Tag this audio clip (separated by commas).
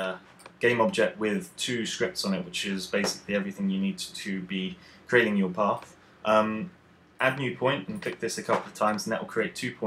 Speech